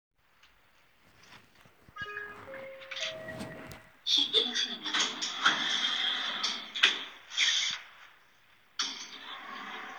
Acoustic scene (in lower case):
elevator